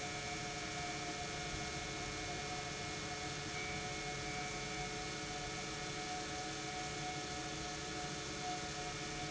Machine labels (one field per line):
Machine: pump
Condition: normal